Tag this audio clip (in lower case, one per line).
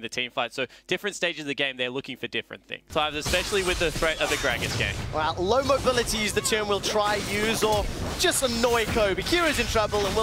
speech